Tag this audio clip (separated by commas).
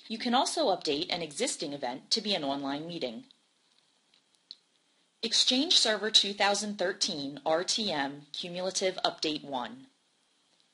Speech